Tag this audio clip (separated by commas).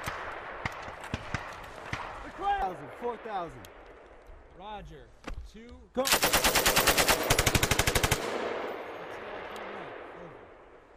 machine gun shooting